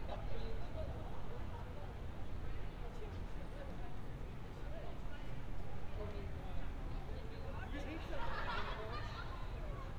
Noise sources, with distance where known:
person or small group talking, far

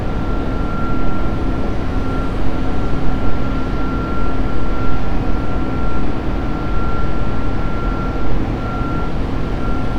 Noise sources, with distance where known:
unidentified alert signal

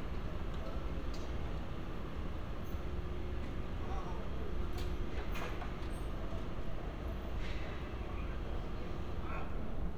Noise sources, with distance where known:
engine of unclear size, near; non-machinery impact; person or small group shouting, far

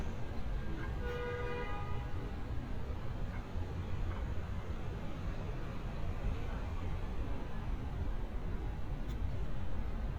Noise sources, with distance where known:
car horn, far

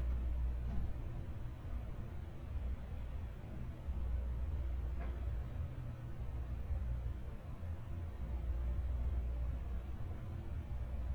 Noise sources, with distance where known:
engine of unclear size, far

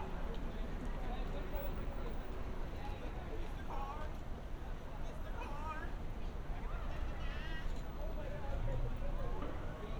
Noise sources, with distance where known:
unidentified human voice

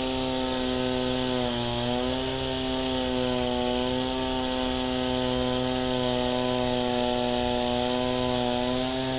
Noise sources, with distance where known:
chainsaw, near

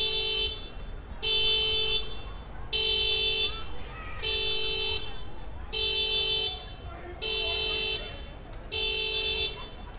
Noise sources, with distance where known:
car horn, near; person or small group shouting

